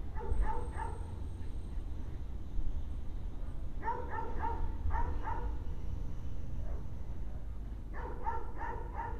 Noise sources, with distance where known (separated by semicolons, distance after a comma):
dog barking or whining